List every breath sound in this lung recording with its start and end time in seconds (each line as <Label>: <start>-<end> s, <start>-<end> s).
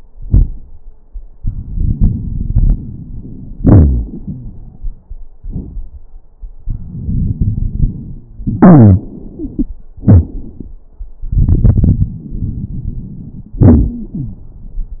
Inhalation: 1.36-3.54 s, 6.67-8.48 s, 11.24-13.61 s
Exhalation: 3.59-5.21 s, 8.44-9.70 s, 13.62-15.00 s
Wheeze: 3.59-4.65 s, 7.99-9.04 s, 9.37-9.71 s, 13.90-14.47 s
Crackles: 1.36-3.54 s, 11.24-13.61 s